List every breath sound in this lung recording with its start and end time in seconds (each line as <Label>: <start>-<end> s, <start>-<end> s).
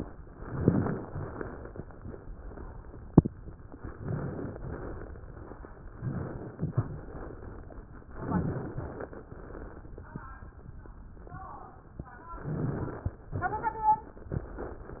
Inhalation: 0.32-0.99 s, 3.89-4.55 s, 5.88-6.55 s, 8.10-8.77 s, 12.43-13.21 s
Exhalation: 1.06-1.73 s, 4.55-5.22 s, 6.58-7.25 s, 8.79-9.45 s, 13.36-14.14 s